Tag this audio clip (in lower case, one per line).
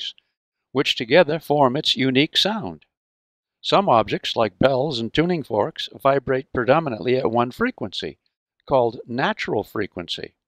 speech